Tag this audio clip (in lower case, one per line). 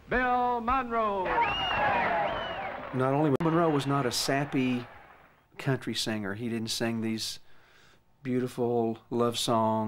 speech